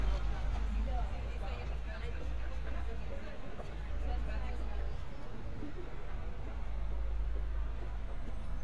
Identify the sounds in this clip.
person or small group talking